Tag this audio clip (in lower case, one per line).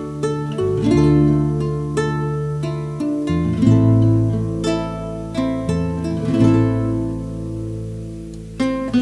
musical instrument
electric guitar
music
strum
guitar
plucked string instrument